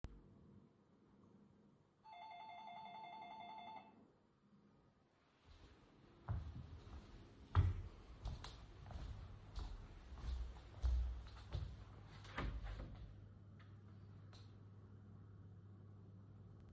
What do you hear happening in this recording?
The doorbell rang and I went into the Hallway to open the door.